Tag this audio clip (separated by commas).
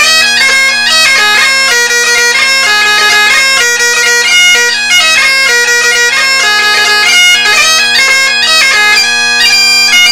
Musical instrument, Bagpipes, Music